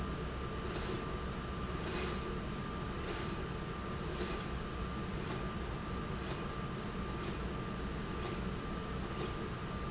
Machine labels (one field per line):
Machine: slide rail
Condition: normal